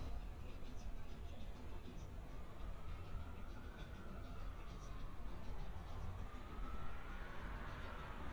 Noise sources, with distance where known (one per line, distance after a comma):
siren, far
music from a moving source